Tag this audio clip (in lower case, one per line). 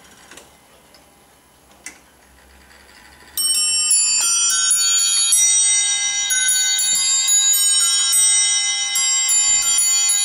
chime